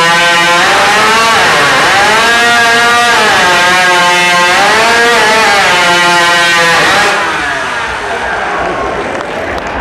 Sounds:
Accelerating, Engine, Speech

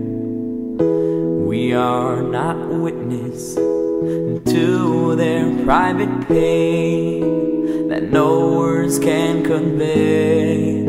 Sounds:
Music

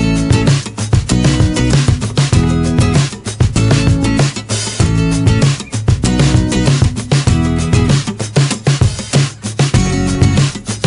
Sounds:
Music

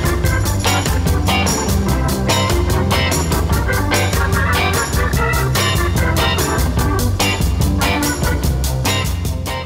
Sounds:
Ska

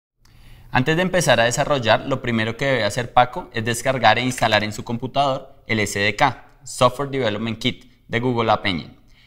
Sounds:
Speech

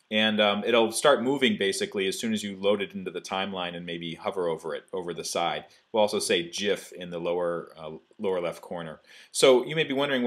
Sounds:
Speech

